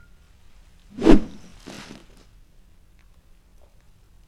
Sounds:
Whoosh

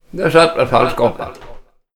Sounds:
Human voice, Speech

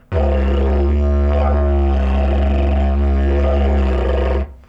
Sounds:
Music, Musical instrument

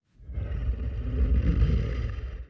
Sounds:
Animal

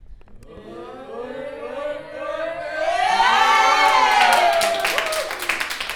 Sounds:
Human group actions, Applause, Cheering

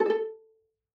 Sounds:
Bowed string instrument, Musical instrument, Music

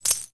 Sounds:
home sounds, Coin (dropping)

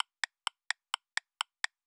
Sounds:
Mechanisms, Clock

